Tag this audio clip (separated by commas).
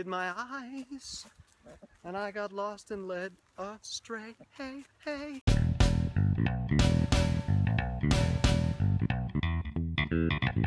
outside, rural or natural, Music, Speech